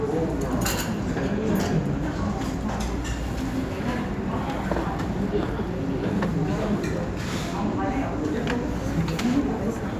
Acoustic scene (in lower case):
restaurant